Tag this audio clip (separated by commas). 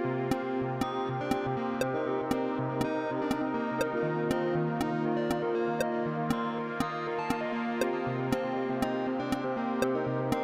Harpsichord, Music